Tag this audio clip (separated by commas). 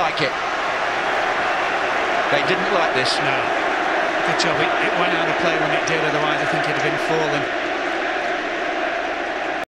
Speech